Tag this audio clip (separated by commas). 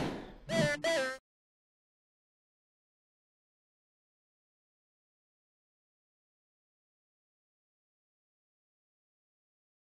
Music